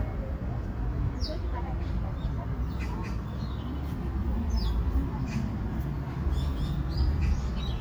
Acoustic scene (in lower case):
park